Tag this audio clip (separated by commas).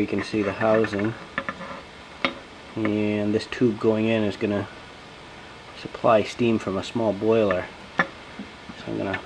Speech